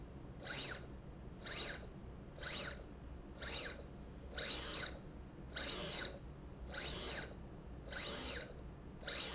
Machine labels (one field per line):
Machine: slide rail